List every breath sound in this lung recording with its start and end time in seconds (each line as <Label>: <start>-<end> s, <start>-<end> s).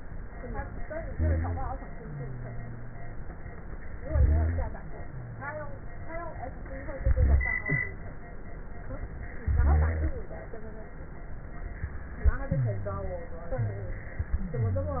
Inhalation: 1.06-1.75 s, 4.02-4.71 s, 7.00-7.69 s, 9.51-10.25 s
Wheeze: 1.94-3.23 s, 12.50-13.24 s, 13.62-14.29 s, 14.42-15.00 s
Rhonchi: 1.06-1.75 s, 4.02-4.71 s, 7.00-7.69 s, 9.51-10.25 s